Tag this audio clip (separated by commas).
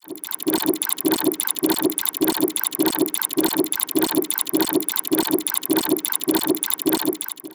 Mechanisms